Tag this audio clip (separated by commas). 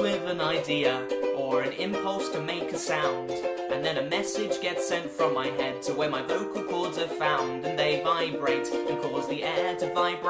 Music